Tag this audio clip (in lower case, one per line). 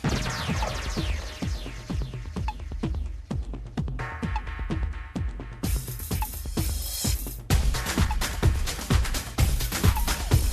music